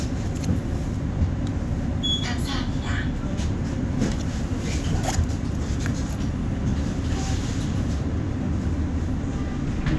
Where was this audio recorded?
on a bus